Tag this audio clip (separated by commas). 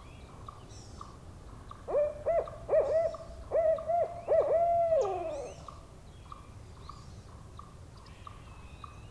owl hooting